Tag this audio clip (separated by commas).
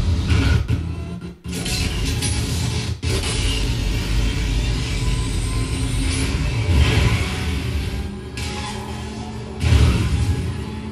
inside a small room